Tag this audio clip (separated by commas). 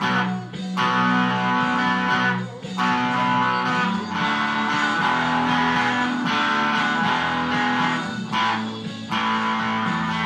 Musical instrument, Strum, Plucked string instrument, Electric guitar, Music, Guitar